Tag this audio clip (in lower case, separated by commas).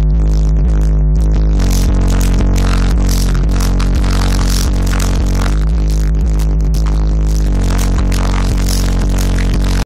clatter, music